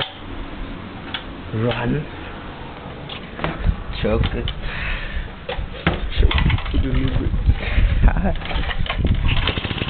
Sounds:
speech
medium engine (mid frequency)
engine

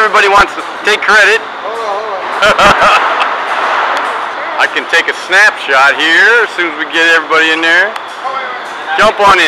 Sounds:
speech

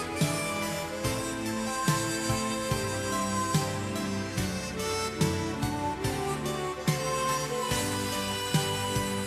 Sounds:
music

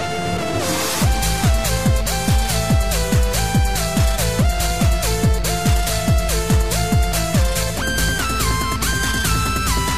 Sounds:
trance music

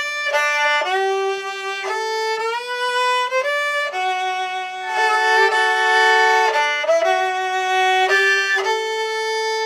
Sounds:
musical instrument
music
violin

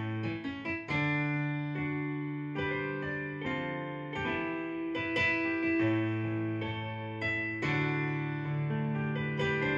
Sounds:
music
tender music

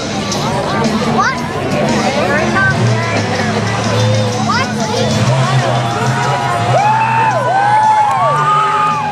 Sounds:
music
vehicle
speech
truck

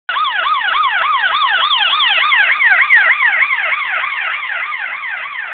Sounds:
siren
emergency vehicle

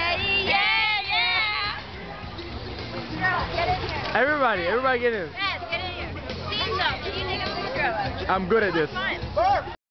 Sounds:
speech
music

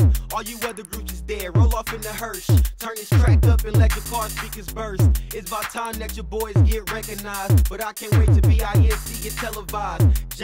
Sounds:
music

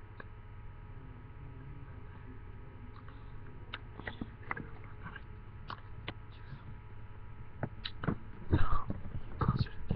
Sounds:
speech

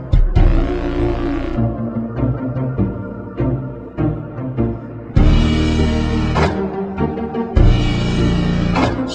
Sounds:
music

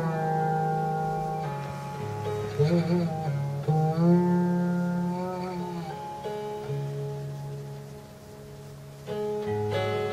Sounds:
inside a small room
music
musical instrument

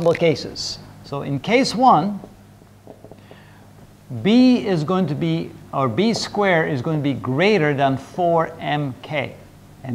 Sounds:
speech

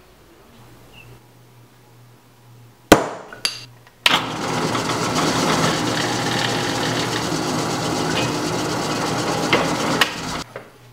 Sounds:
hammer

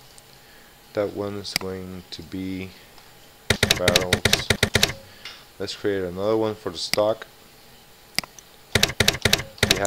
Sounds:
speech

